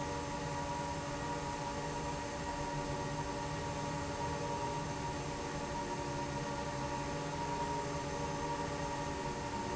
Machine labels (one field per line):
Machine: fan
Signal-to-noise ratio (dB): -6 dB